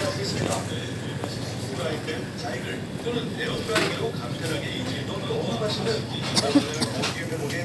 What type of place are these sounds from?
crowded indoor space